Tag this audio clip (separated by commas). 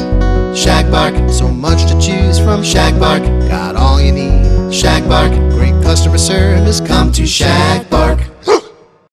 pets, Music, Bow-wow, Animal, Dog